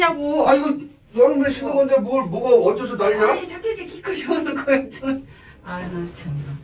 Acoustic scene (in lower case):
elevator